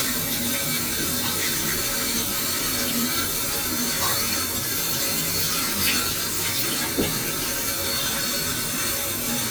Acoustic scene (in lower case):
restroom